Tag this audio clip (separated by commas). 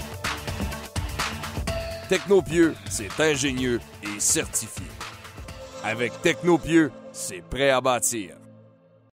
Speech, Techno, Electronic music, Music